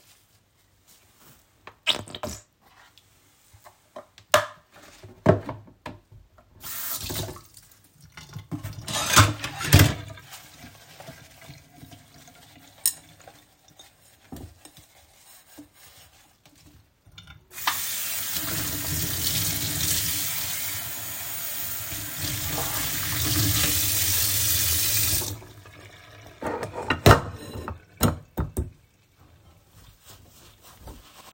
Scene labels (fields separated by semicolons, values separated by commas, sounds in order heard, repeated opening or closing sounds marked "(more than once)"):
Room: kitchen; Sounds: running water, cutlery and dishes